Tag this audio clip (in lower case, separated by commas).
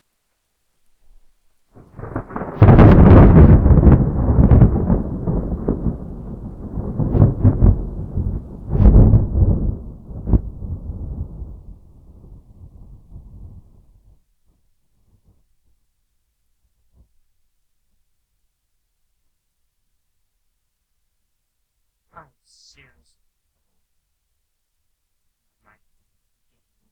thunderstorm, thunder